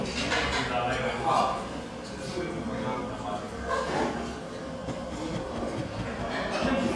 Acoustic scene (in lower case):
restaurant